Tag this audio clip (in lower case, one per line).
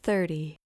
human voice
speech
female speech